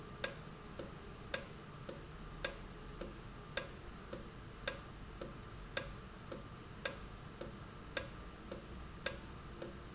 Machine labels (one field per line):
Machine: valve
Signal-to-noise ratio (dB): 6 dB